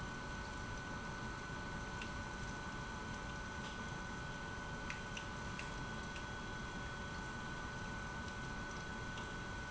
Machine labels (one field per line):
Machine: pump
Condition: abnormal